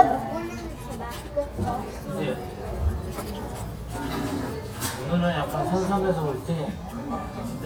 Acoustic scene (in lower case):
restaurant